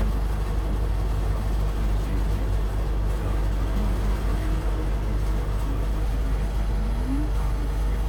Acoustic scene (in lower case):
bus